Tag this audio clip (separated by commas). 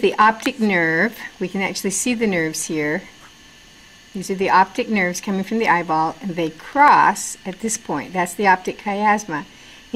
Speech